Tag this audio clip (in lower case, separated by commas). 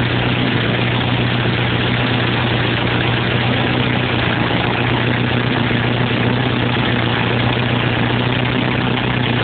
engine